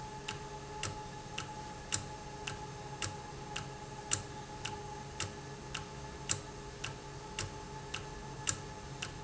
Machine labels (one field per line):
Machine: valve